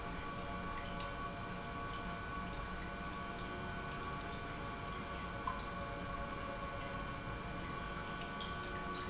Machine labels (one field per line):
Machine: pump